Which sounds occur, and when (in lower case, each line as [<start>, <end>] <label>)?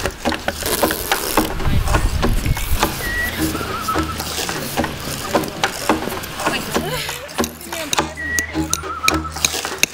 [0.00, 0.08] hammer
[0.00, 9.93] music
[0.00, 9.93] packing tape
[0.20, 0.30] hammer
[0.42, 0.53] hammer
[0.77, 0.90] hammer
[1.03, 1.14] hammer
[1.33, 1.46] hammer
[1.50, 2.01] male speech
[1.90, 1.99] hammer
[2.17, 2.30] hammer
[2.44, 2.68] whistling
[2.50, 2.60] hammer
[2.76, 2.90] hammer
[2.95, 3.32] whistling
[3.53, 4.09] whistling
[3.90, 4.03] hammer
[4.14, 4.26] hammer
[4.72, 4.83] hammer
[5.03, 6.14] male speech
[5.32, 5.45] hammer
[5.57, 5.69] hammer
[5.83, 6.10] hammer
[6.39, 6.65] female speech
[6.40, 7.31] laughter
[6.41, 6.52] hammer
[6.71, 6.81] hammer
[7.05, 7.18] hammer
[7.37, 7.49] hammer
[7.63, 8.77] male speech
[7.89, 8.09] hammer
[8.13, 8.46] whistling
[8.33, 8.47] hammer
[8.67, 8.81] hammer
[8.67, 9.29] whistling
[9.00, 9.17] hammer
[9.29, 9.44] hammer
[9.74, 9.93] hammer